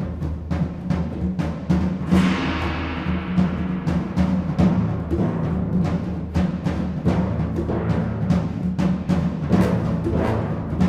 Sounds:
Music

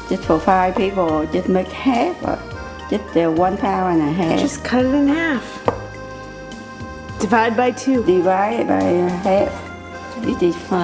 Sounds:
Music, Speech

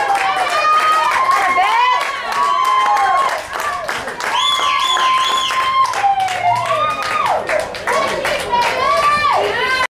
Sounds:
Speech

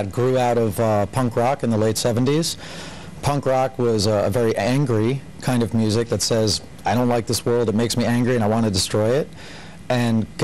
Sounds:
Speech

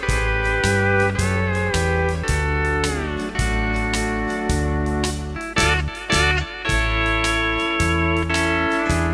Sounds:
Plucked string instrument, Music, Guitar, slide guitar, Musical instrument

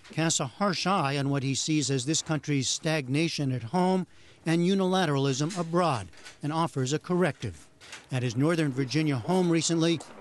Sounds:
Speech

